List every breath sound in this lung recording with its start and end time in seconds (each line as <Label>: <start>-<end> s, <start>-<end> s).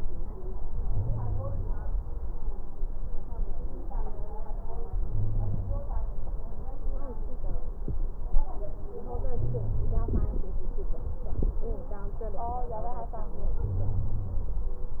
Inhalation: 0.89-1.75 s, 5.09-5.95 s, 9.40-10.26 s, 13.71-14.57 s
Wheeze: 0.89-1.75 s, 5.09-5.95 s, 9.40-10.26 s, 13.71-14.57 s